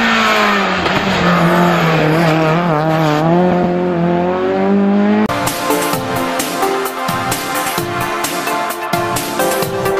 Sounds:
Car passing by, Motor vehicle (road), Car, Music, Vehicle

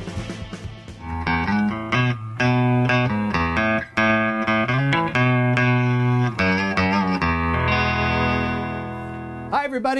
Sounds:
Plucked string instrument, Guitar, Strum, Speech, Musical instrument, Music

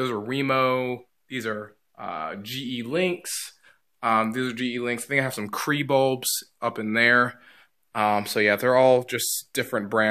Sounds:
Speech

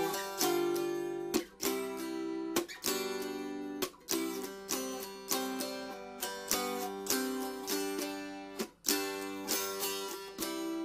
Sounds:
Plucked string instrument, Musical instrument, Music, Zither

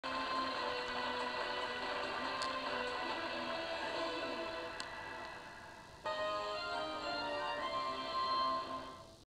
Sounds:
Music, Television

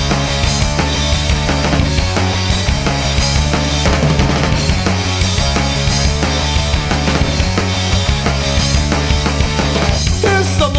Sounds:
Music

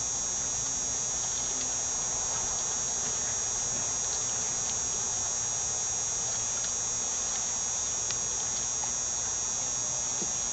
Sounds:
Boat, outside, rural or natural

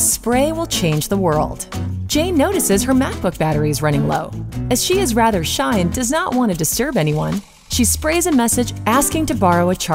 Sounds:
Music, Speech

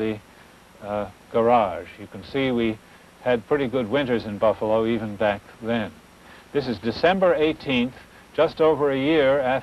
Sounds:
Speech

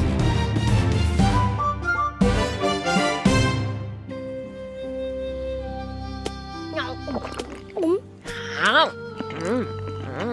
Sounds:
bouncing on trampoline

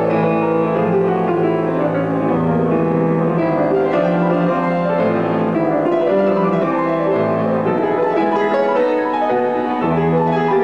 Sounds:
Music

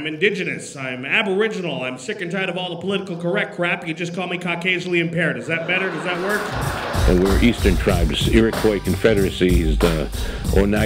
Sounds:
Speech, Music

